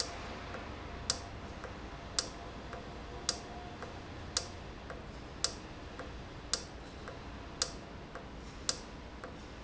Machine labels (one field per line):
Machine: valve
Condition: normal